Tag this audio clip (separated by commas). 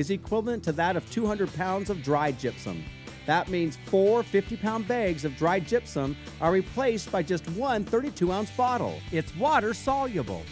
Speech, Music